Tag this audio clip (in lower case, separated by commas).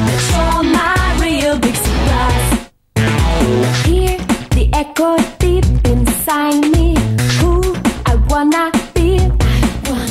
funk, music